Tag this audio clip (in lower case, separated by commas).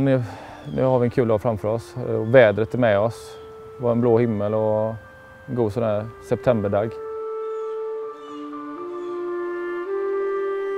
outside, rural or natural, music, speech